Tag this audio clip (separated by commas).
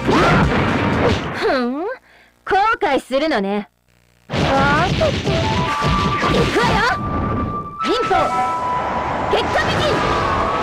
Speech, Music